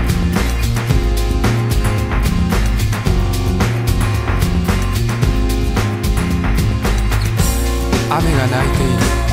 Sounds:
speech
music

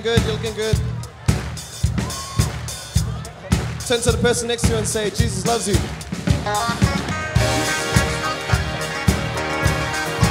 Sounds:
music
speech

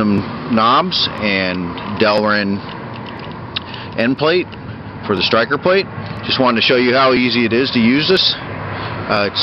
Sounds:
speech

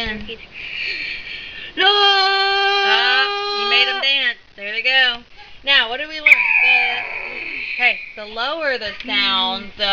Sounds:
speech

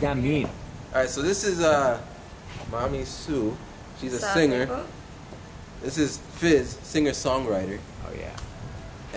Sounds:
speech

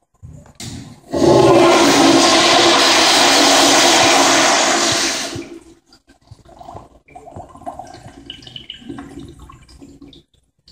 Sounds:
toilet flush
toilet flushing

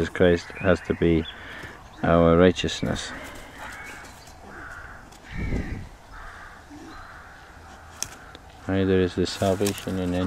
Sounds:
speech
animal

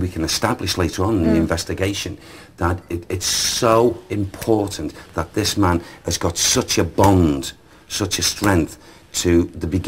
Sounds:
speech

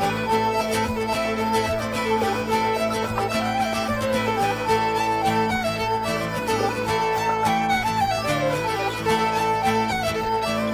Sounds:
music

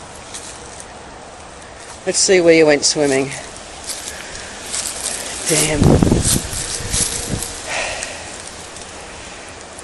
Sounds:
speech

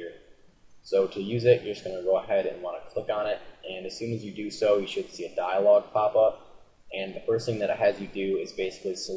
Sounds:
speech

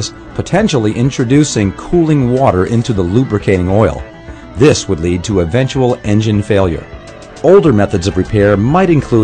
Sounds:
music
speech

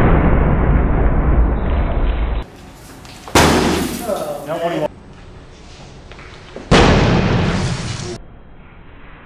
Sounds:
hammer

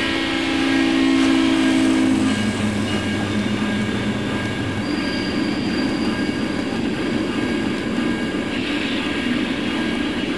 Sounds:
train
rail transport

